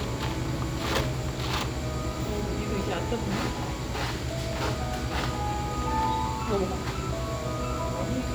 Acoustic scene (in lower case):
cafe